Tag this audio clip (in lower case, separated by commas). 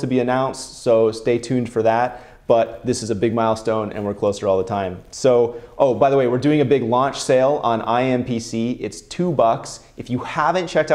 speech